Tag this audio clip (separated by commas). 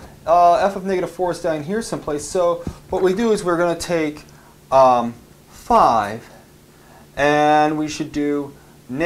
Speech, inside a small room